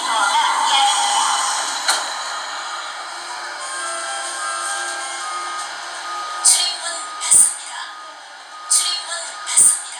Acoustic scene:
subway train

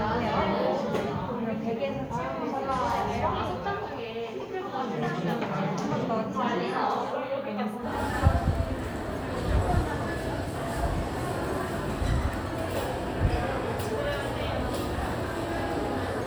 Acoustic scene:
crowded indoor space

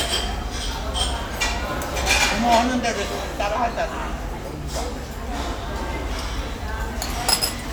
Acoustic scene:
restaurant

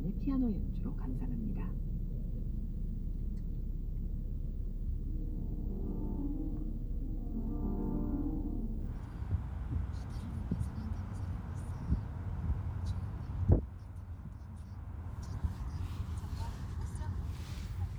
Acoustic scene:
car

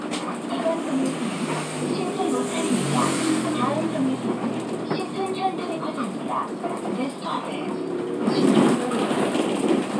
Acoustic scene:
bus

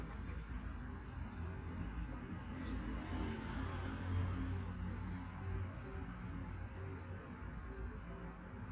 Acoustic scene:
residential area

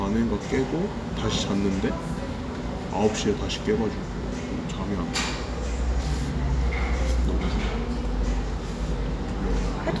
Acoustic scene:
cafe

